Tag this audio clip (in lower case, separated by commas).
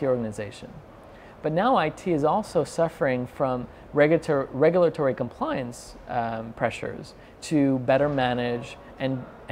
speech